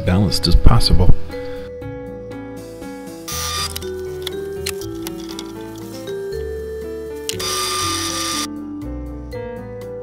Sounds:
Music, Speech

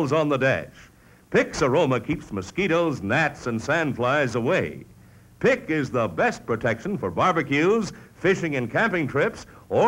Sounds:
Speech

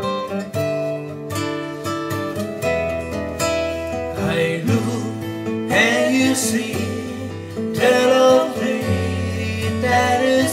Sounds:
Acoustic guitar, Music, Musical instrument, Guitar

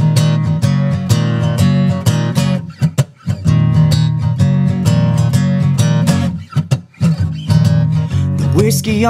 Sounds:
Music

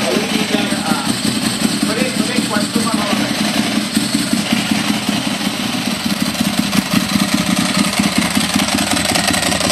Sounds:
Speech

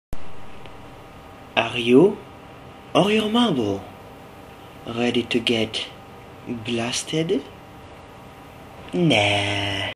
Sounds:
Speech

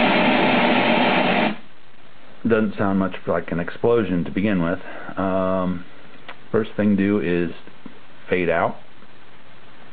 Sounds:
Speech

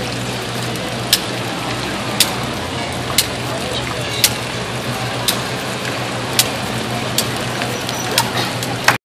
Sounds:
Slap, Speech

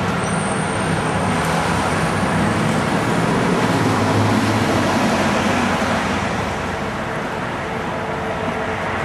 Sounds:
roadway noise, Bus

